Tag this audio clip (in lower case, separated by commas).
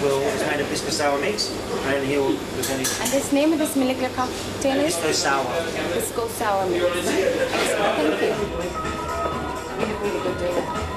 speech, music